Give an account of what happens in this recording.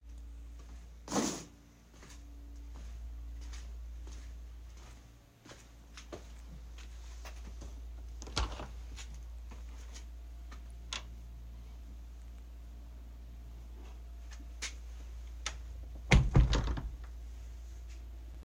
I walked to the hall of my house and then opened and closed the door